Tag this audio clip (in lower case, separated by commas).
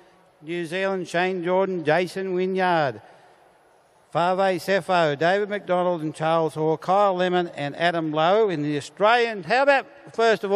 speech